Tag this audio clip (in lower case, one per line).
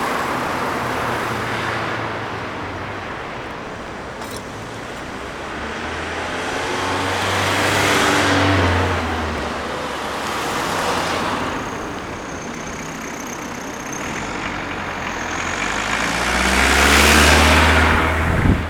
motor vehicle (road)
traffic noise
vehicle